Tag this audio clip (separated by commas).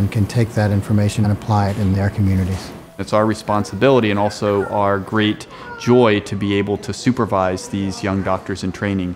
Speech